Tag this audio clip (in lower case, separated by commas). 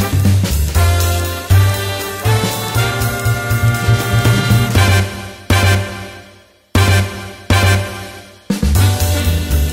swing music